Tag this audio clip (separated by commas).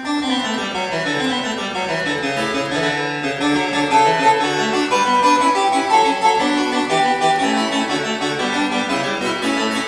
playing harpsichord